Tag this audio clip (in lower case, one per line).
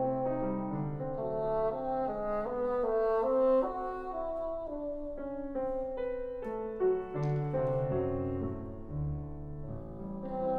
playing bassoon